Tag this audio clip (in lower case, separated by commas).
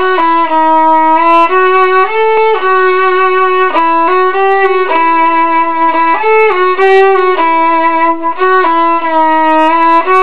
music, musical instrument, violin